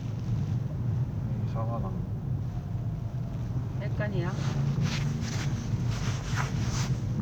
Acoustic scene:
car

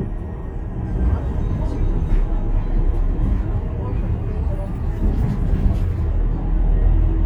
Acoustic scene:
bus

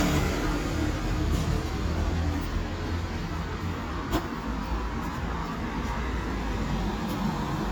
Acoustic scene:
street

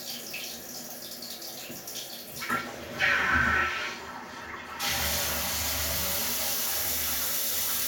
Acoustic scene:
restroom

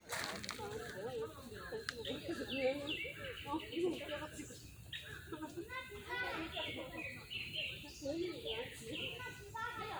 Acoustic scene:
park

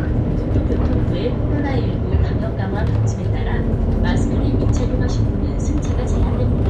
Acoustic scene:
bus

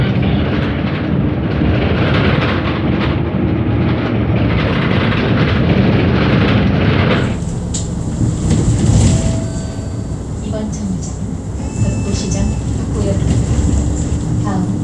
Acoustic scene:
bus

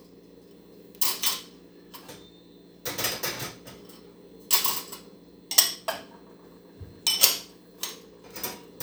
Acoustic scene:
kitchen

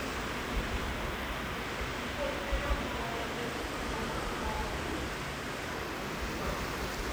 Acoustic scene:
park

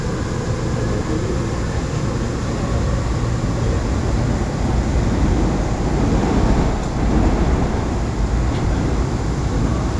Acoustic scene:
subway train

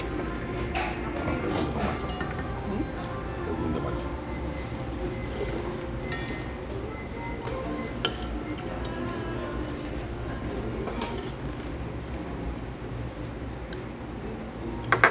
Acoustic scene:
restaurant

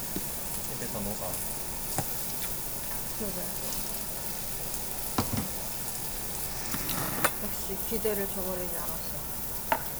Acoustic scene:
restaurant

